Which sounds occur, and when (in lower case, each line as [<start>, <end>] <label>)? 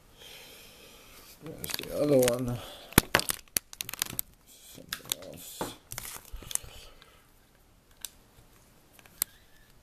[0.00, 9.82] background noise
[5.08, 5.39] male speech
[5.56, 5.69] tap
[6.29, 7.24] breathing
[9.11, 9.67] surface contact